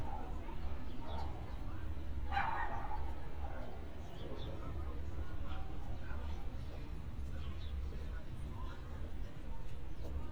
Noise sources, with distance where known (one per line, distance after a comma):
person or small group talking, far
dog barking or whining, far